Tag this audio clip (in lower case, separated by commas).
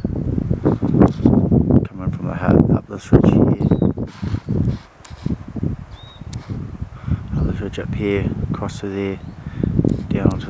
animal, speech